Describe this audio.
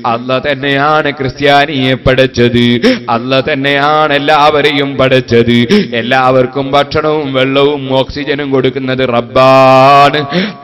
A man chanting into a microphone